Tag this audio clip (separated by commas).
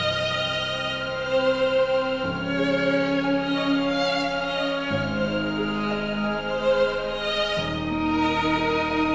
Music